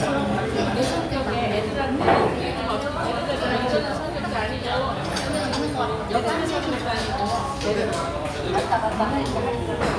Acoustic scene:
restaurant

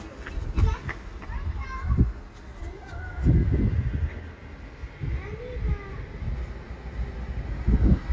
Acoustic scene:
residential area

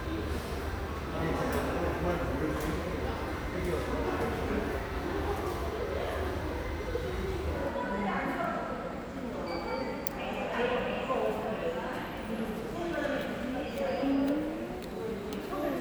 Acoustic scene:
subway station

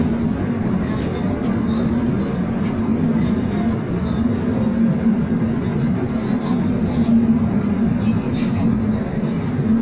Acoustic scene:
subway train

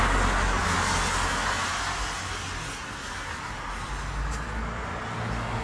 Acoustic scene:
street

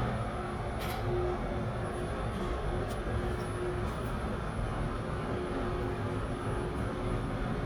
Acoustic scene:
elevator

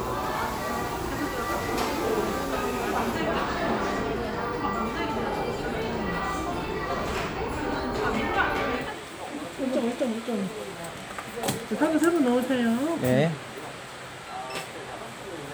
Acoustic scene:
crowded indoor space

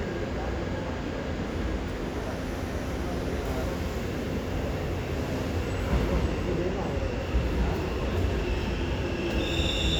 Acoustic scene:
subway station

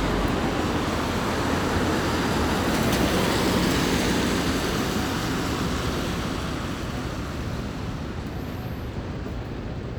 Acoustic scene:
street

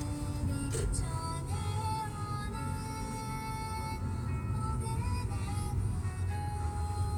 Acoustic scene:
car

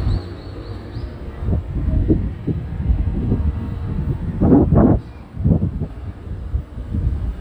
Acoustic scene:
street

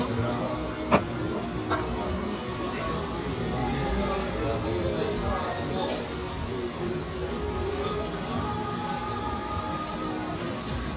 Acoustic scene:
restaurant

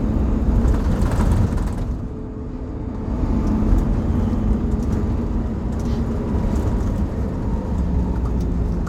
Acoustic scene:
bus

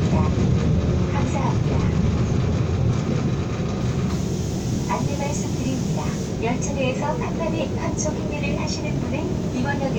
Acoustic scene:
subway train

